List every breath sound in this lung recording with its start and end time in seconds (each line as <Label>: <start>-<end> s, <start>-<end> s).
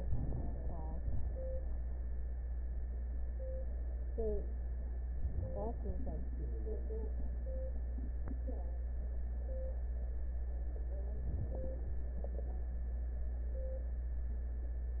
Inhalation: 0.00-0.96 s, 11.17-11.76 s
Exhalation: 0.99-1.38 s